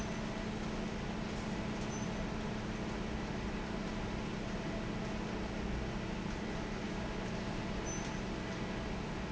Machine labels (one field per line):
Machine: fan